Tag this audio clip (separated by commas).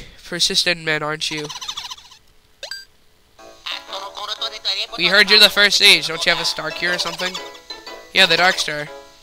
Speech, Music